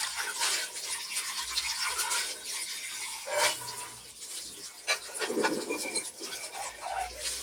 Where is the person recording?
in a kitchen